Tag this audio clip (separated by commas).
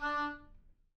Wind instrument, Music, Musical instrument